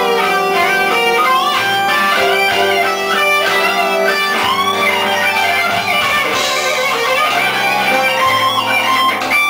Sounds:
Guitar, Music, Musical instrument, Plucked string instrument, Strum

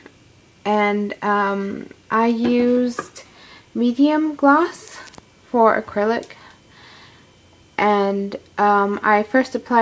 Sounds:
Speech

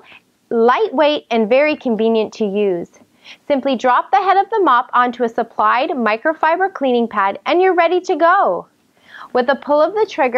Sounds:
Speech

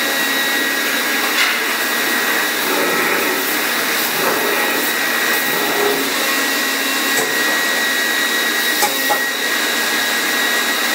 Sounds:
lathe spinning

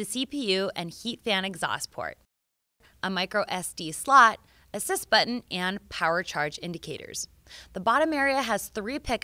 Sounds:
Speech

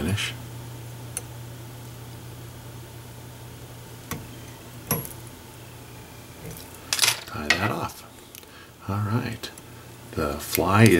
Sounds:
Speech

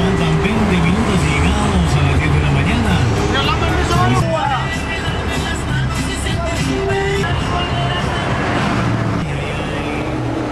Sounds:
Speech, Vehicle, Bus, Music

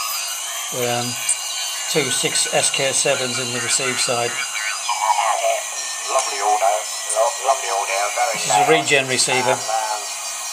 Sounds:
Speech, Radio

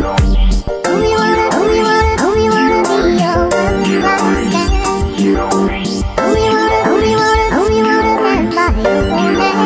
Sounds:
Music, Hip hop music

